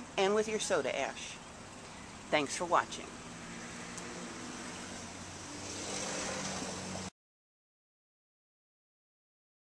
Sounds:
Silence, Speech

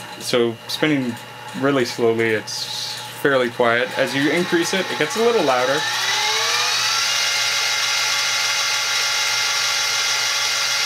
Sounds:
Speech, White noise

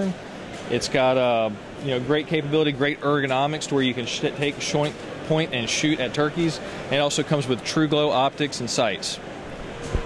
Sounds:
Speech

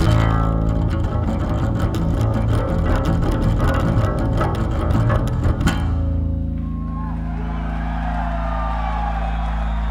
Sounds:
playing double bass

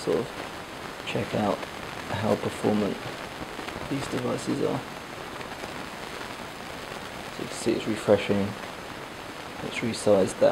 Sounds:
Rain

